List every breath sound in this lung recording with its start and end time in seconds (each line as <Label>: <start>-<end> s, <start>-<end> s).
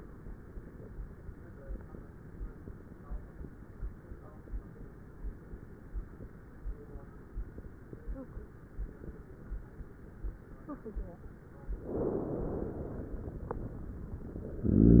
Inhalation: 11.83-13.61 s
Exhalation: 14.62-15.00 s
Wheeze: 14.60-15.00 s